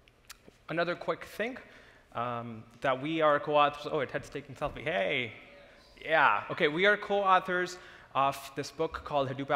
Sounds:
Speech

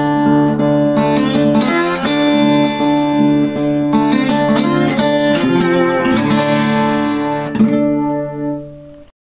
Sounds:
Strum, Music, Musical instrument, Plucked string instrument, Guitar

